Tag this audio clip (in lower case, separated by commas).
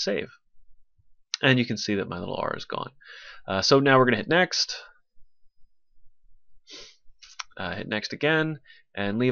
speech